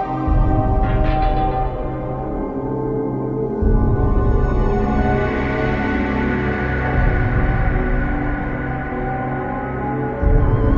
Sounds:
Music

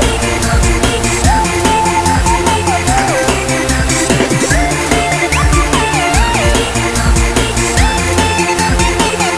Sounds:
Music

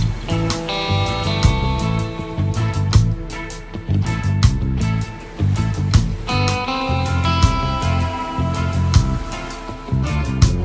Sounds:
Music, Soul music

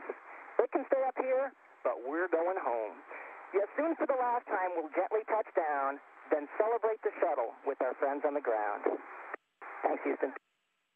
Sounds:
Radio

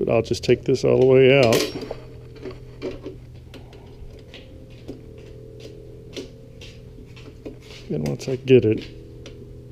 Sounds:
Speech

